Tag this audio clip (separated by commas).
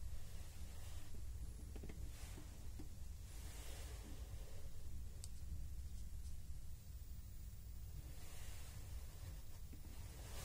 inside a small room